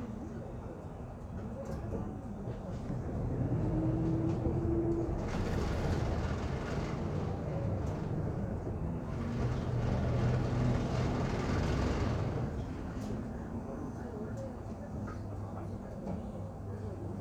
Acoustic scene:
bus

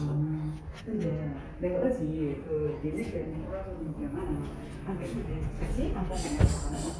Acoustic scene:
elevator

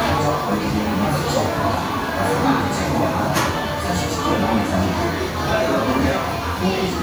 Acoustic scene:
crowded indoor space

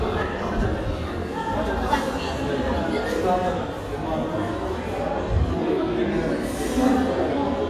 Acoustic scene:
crowded indoor space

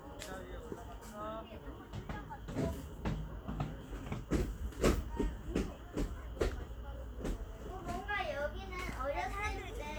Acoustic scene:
park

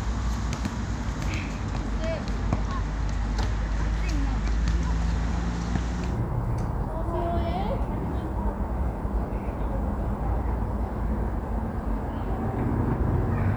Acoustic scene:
residential area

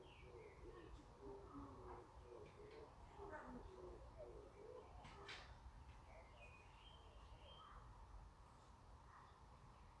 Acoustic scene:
park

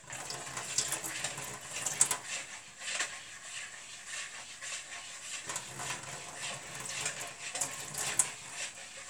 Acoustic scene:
kitchen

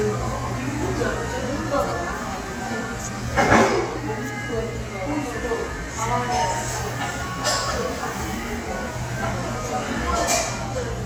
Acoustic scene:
restaurant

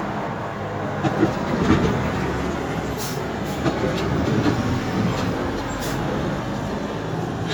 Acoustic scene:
street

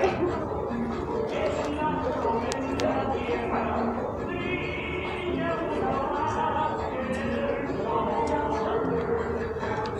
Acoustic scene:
cafe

